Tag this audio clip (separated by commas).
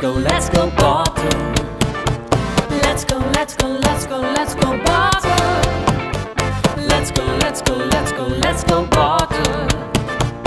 Wood block, Music